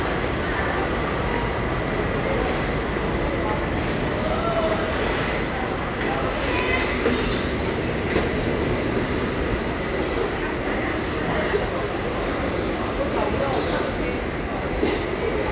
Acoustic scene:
crowded indoor space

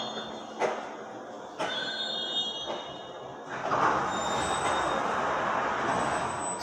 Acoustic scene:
subway station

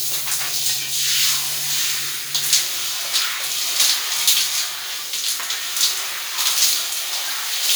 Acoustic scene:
restroom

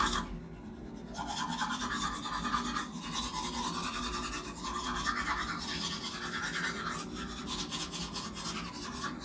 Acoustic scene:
restroom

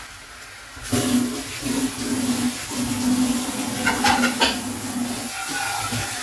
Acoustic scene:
kitchen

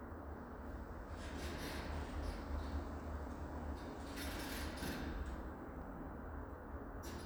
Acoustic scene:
elevator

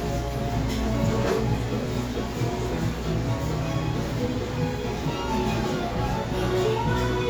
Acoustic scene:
cafe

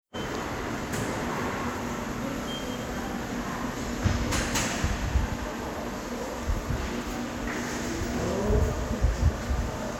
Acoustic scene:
subway station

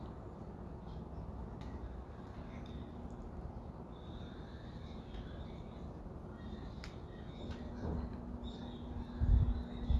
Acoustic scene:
residential area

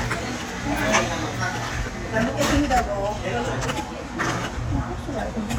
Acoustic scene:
restaurant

